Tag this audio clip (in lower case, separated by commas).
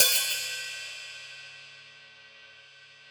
cymbal, musical instrument, music, percussion, hi-hat